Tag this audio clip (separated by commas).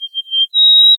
Wild animals, Animal, bird song, Bird